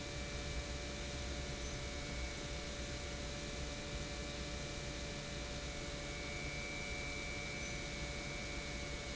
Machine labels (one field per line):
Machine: pump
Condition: normal